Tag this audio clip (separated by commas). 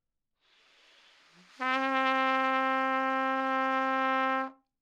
Musical instrument, Music, Brass instrument, Trumpet